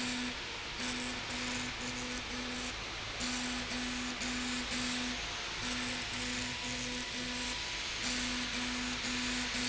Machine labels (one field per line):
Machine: slide rail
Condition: abnormal